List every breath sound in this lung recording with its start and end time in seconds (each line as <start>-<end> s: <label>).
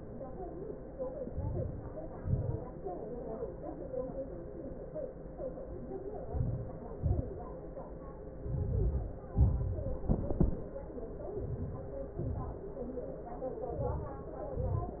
1.16-1.71 s: inhalation
1.78-2.34 s: exhalation
5.96-6.60 s: inhalation
6.58-7.16 s: exhalation
8.48-9.15 s: inhalation
9.20-9.77 s: exhalation
11.33-12.22 s: inhalation
12.29-12.92 s: exhalation
13.64-14.22 s: inhalation
14.25-14.83 s: exhalation